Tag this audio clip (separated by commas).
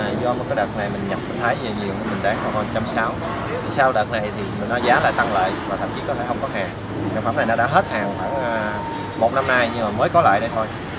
Speech